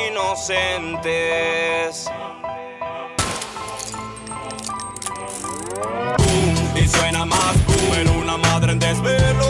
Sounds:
Music

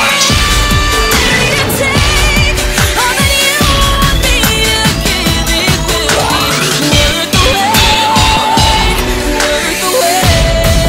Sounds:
Disco, Music, Pop music, Rhythm and blues

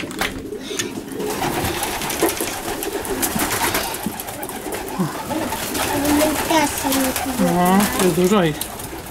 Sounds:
Speech, inside a small room, Bird, Pigeon

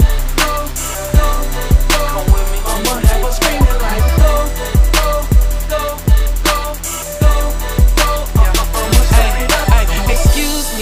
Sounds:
Music

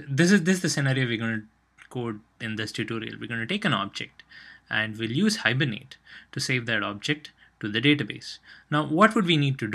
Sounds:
Speech

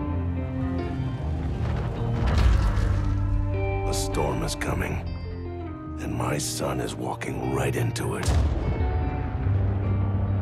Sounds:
Music, Speech

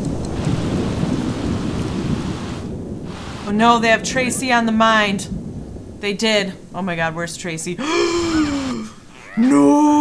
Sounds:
Rain

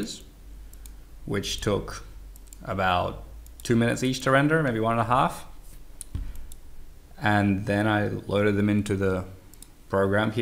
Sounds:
Speech

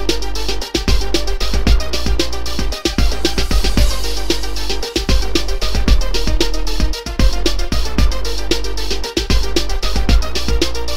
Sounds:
Music

